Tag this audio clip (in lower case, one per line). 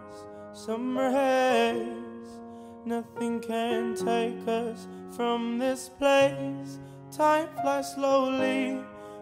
music